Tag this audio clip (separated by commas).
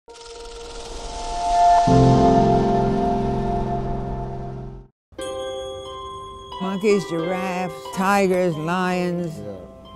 Music, Speech